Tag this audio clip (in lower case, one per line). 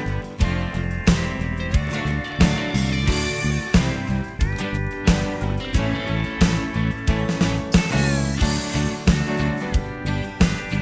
music